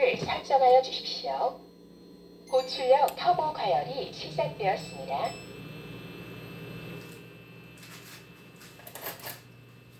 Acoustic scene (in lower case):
kitchen